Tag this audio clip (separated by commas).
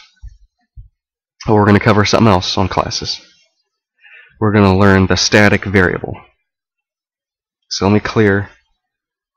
Speech